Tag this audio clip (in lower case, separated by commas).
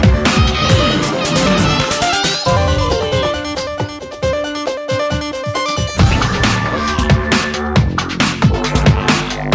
music, drum and bass